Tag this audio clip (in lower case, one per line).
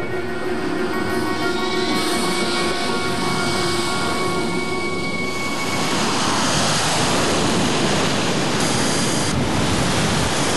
wind